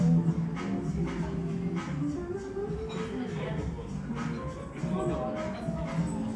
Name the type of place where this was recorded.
cafe